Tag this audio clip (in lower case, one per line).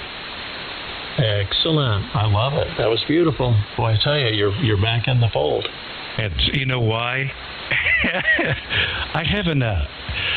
speech